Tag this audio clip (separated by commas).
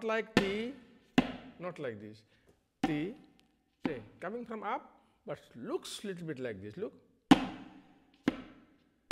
Speech, Percussion, Tabla, Musical instrument, Music